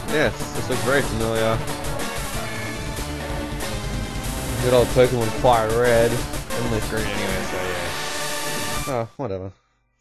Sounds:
Speech, Music

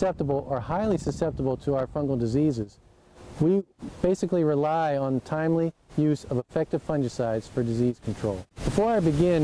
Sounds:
Speech

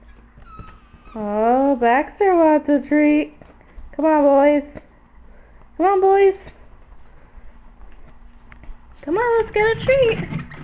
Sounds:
Speech, Animal, inside a small room, Domestic animals, Dog

